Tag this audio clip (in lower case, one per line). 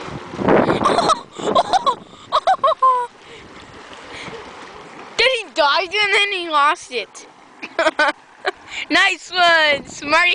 speech
boat
vehicle